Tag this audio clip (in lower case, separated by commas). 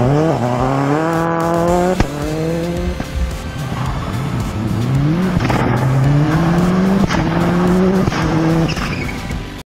revving, music, car